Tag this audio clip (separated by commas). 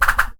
swoosh